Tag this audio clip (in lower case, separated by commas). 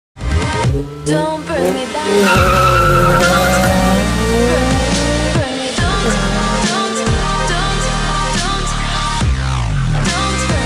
auto racing, car, tire squeal